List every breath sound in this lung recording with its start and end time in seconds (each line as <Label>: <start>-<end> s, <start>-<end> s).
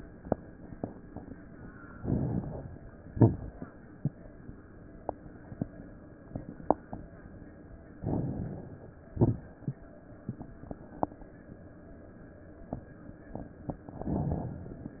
Inhalation: 1.94-3.00 s, 7.97-9.03 s, 13.96-15.00 s
Exhalation: 3.06-3.60 s, 9.11-9.65 s
Crackles: 1.93-3.02 s, 3.06-3.60 s, 7.97-9.03 s, 9.11-9.65 s